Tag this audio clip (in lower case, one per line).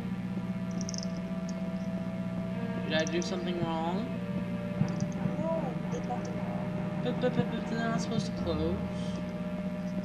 music
speech